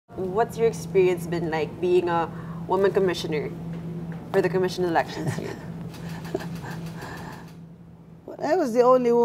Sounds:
female speech

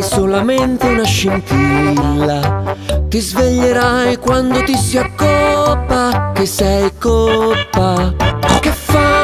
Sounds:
music, oink

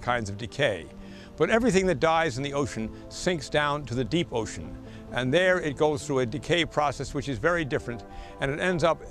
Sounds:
speech, music

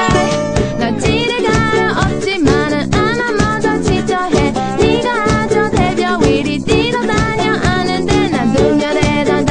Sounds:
electronic music, guitar, music, house music, musical instrument

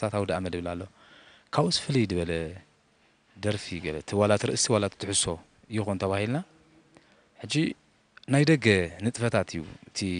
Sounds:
speech

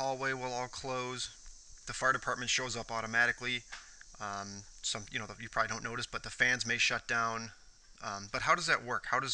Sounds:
speech

